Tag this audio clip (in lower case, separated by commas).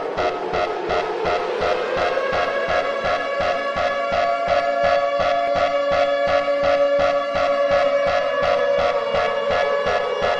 music